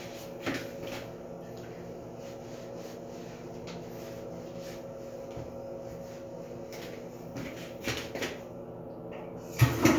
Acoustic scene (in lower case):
restroom